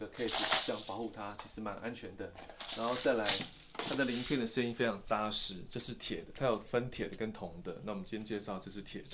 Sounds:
playing tambourine

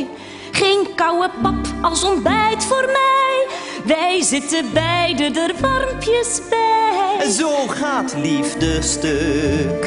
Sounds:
Exciting music, Music

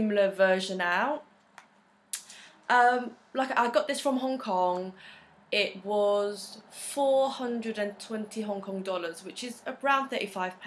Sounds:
Speech

